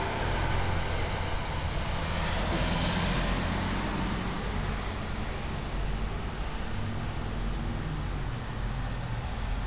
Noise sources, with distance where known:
large-sounding engine, near

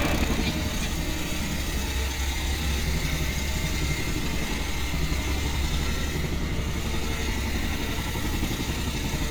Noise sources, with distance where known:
small-sounding engine, near

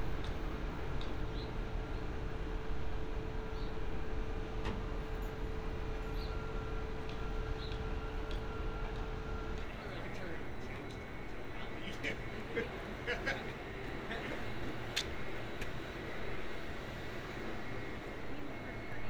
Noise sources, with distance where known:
unidentified human voice

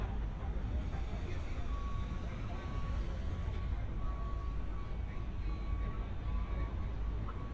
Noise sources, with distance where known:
reverse beeper, far; person or small group talking

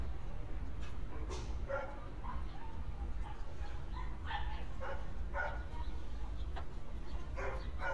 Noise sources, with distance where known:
dog barking or whining, far

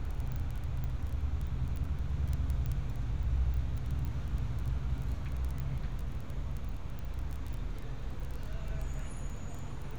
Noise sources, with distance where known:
large-sounding engine; person or small group talking

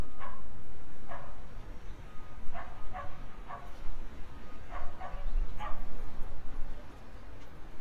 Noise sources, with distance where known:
dog barking or whining, near

